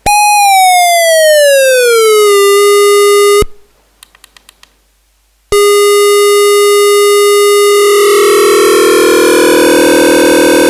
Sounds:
sampler

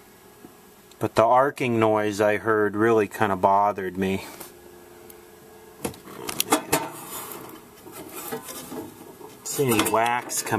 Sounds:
speech

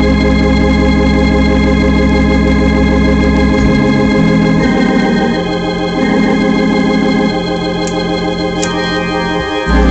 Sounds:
hammond organ, organ, playing hammond organ

